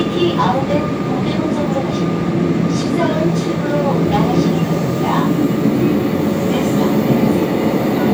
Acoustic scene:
subway train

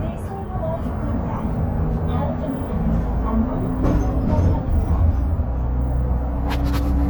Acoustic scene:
bus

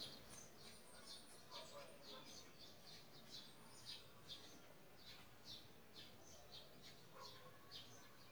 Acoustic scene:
park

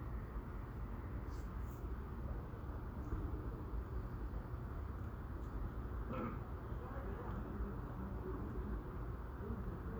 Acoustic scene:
residential area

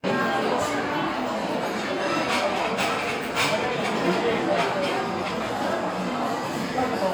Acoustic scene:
restaurant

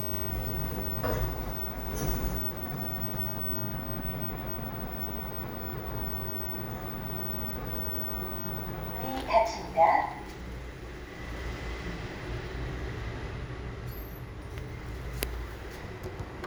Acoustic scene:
elevator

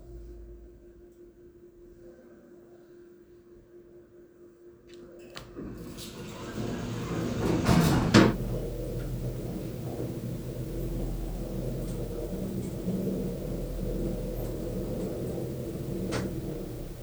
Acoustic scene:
elevator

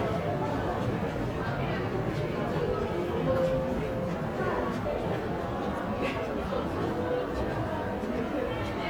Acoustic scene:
crowded indoor space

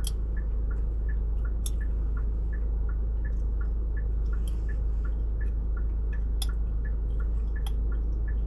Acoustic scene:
car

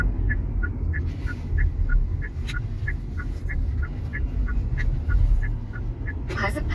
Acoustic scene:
car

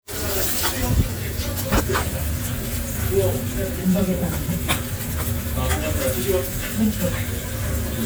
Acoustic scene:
restaurant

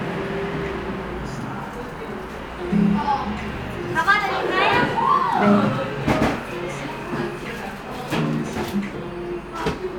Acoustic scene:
cafe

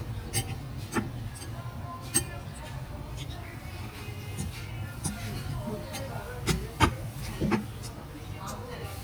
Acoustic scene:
restaurant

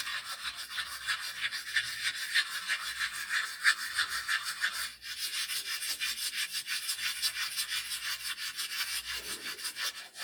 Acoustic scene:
restroom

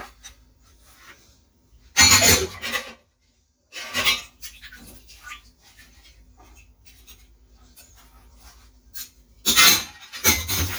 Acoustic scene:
kitchen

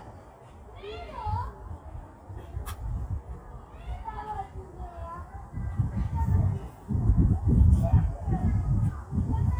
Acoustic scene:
park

